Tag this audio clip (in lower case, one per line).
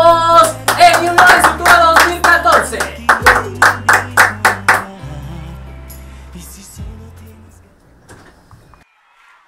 speech
music